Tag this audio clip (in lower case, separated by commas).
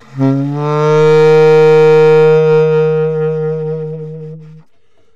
music, woodwind instrument, musical instrument